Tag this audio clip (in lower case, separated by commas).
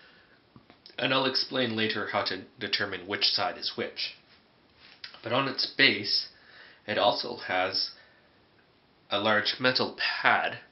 speech